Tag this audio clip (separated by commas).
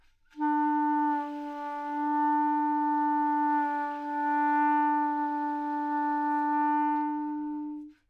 Music, woodwind instrument, Musical instrument